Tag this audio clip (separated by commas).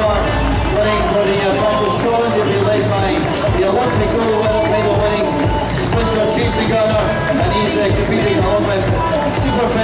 Run, Speech, Music